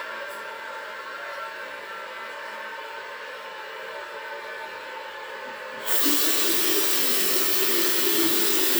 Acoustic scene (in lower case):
restroom